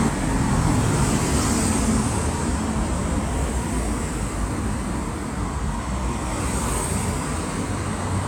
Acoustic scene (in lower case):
street